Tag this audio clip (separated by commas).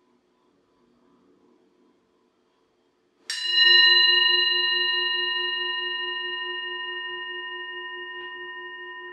singing bowl